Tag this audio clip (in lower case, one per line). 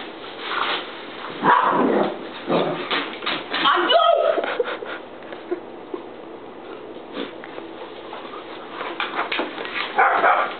speech